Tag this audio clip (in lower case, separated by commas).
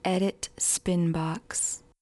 human voice, speech, female speech